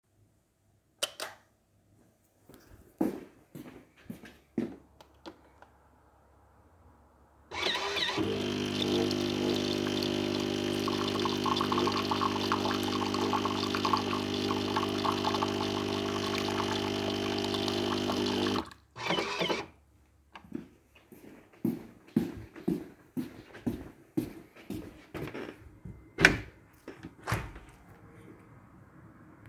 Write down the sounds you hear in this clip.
light switch, footsteps, coffee machine, window